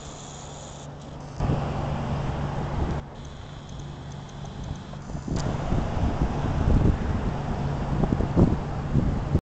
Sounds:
Vehicle

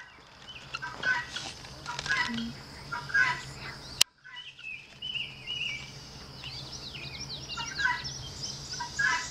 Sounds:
Bird, Insect, bird song, Chirp, Cricket

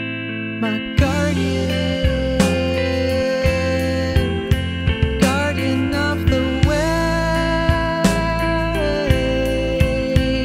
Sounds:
Music

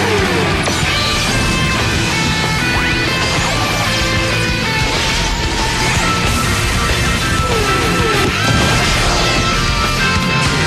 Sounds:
Background music, Music

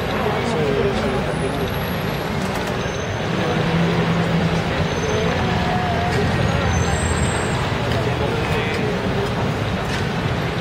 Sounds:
Speech

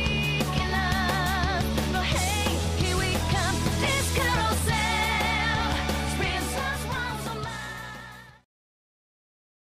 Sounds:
Music

